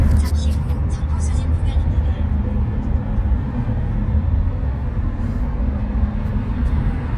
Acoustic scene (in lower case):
car